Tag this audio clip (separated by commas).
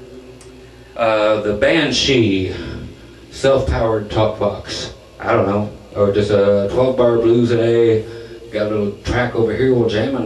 Speech